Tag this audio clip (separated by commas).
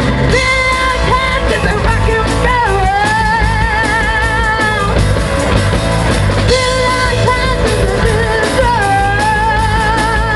Rock and roll, Drum kit, Musical instrument, Music, Drum